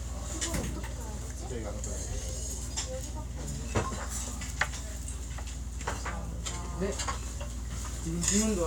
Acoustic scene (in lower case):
restaurant